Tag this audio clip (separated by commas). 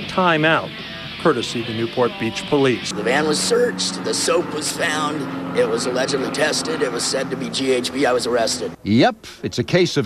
Speech, Music